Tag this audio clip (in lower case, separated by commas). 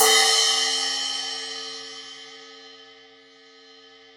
musical instrument, music, percussion, cymbal, hi-hat